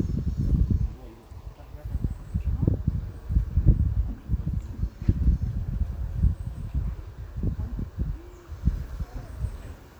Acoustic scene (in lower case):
park